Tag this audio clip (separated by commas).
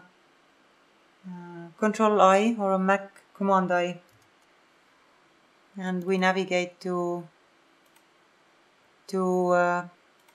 Speech